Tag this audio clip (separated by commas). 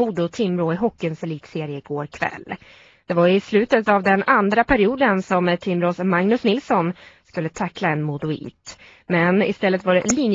Speech